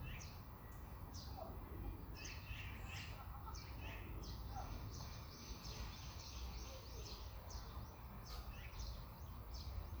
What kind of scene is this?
park